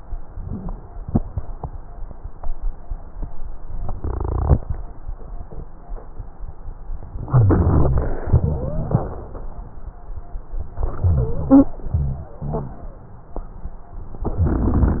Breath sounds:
Inhalation: 7.30-8.26 s, 10.85-11.75 s
Exhalation: 8.25-9.20 s, 11.90-12.83 s
Wheeze: 8.43-8.96 s, 11.01-11.75 s, 11.90-12.83 s
Rhonchi: 7.30-8.26 s

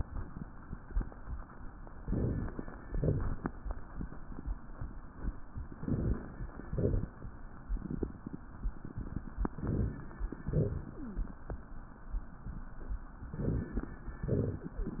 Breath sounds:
Inhalation: 2.01-2.87 s, 5.71-6.47 s, 9.47-10.23 s, 13.28-14.04 s
Exhalation: 2.87-3.49 s, 6.58-7.21 s, 10.42-11.18 s, 14.21-14.97 s
Crackles: 2.03-2.79 s, 2.87-3.49 s, 5.71-6.47 s, 6.58-7.21 s, 9.47-10.23 s, 10.42-11.18 s, 13.28-14.04 s, 14.21-14.97 s

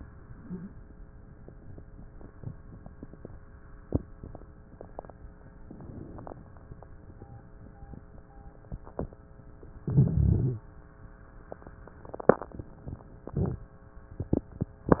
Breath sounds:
Inhalation: 5.64-6.38 s, 9.81-10.64 s
Wheeze: 0.31-0.76 s

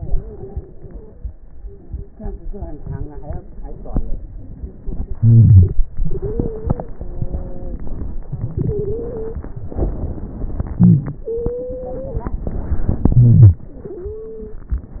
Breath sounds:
Wheeze: 5.16-5.80 s, 7.04-7.81 s, 10.78-11.22 s
Stridor: 0.00-0.59 s, 6.01-6.87 s, 8.61-9.39 s, 11.29-12.20 s, 13.82-14.65 s

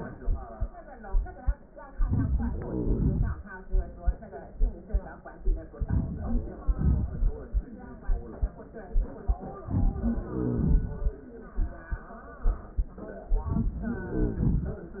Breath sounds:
Wheeze: 2.55-3.40 s, 10.25-10.75 s, 13.90-14.78 s

